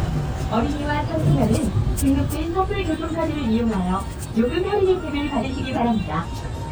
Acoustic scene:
bus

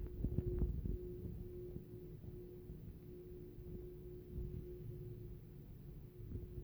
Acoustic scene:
elevator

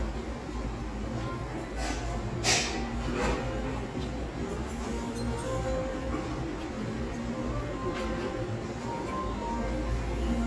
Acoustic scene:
restaurant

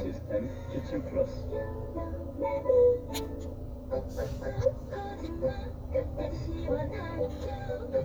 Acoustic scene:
car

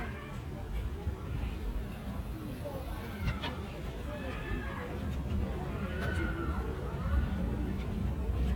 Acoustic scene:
park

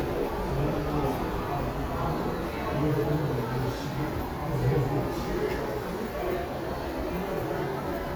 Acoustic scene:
subway station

